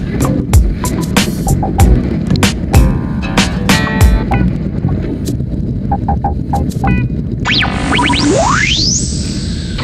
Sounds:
Music

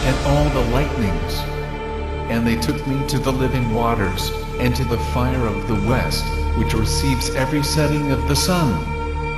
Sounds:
Speech, Music

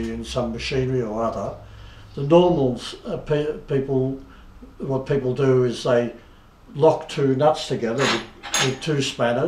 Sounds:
Speech

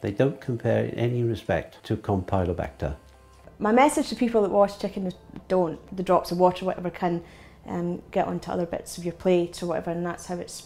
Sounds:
Speech

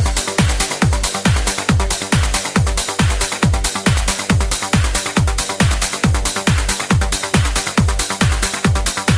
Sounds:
Music, House music

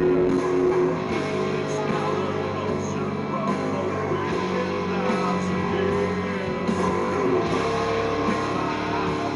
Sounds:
Music

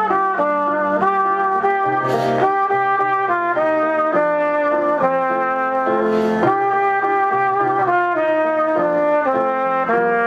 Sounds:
Music, Trumpet

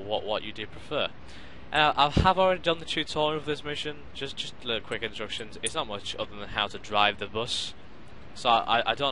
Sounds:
Speech

